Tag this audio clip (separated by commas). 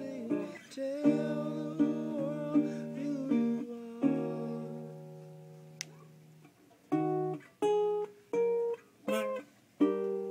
Music, Singing, Ukulele, Guitar, Plucked string instrument, Musical instrument